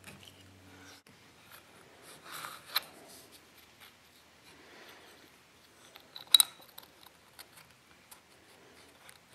An object is dropped onto wood